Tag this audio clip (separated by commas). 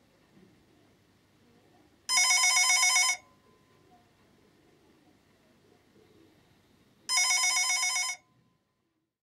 Telephone bell ringing